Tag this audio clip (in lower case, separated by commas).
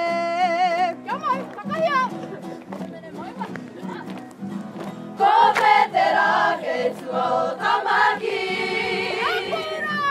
music, speech